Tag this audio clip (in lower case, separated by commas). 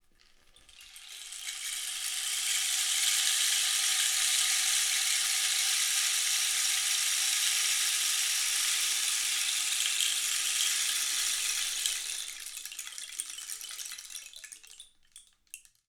music, percussion, rattle (instrument), musical instrument